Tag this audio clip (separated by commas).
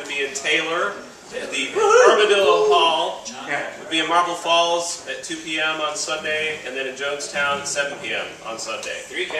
Speech